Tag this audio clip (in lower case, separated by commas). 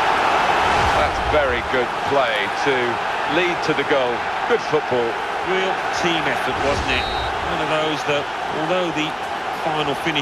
speech